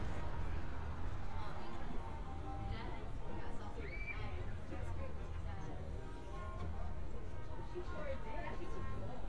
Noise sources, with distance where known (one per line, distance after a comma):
music from an unclear source, near